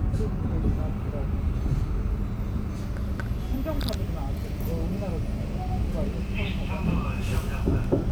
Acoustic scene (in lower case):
bus